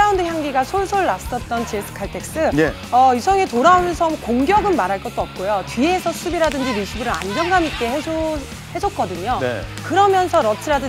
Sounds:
playing volleyball

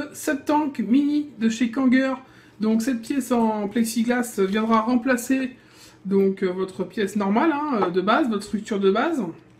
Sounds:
speech

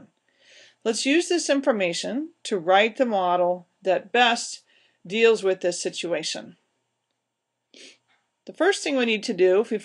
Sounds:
speech

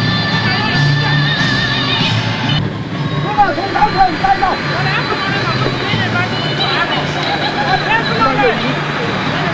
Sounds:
music, speech

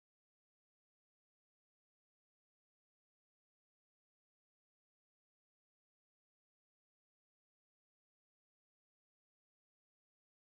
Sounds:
chimpanzee pant-hooting

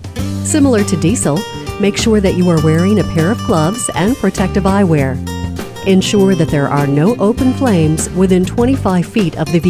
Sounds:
speech, music

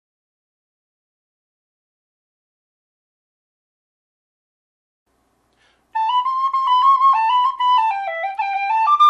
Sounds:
flute, woodwind instrument

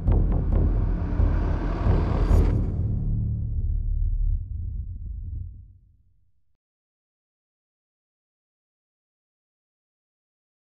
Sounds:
strike lighter

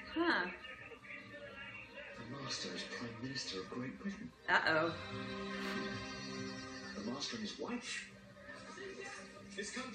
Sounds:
music, speech

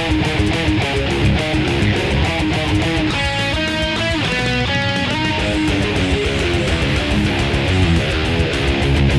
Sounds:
plucked string instrument, electric guitar, guitar, musical instrument, strum, music

